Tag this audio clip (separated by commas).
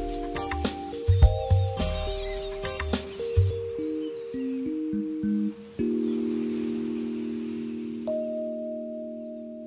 Singing bowl, Music